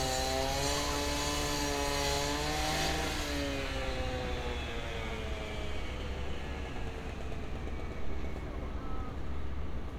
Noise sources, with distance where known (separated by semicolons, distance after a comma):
large rotating saw, near